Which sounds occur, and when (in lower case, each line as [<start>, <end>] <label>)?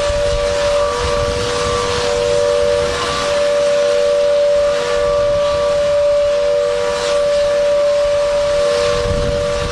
[0.00, 3.43] wind noise (microphone)
[0.00, 9.71] ship
[0.00, 9.71] ship
[0.00, 9.71] steam
[4.55, 6.66] wind noise (microphone)
[7.22, 9.71] wind noise (microphone)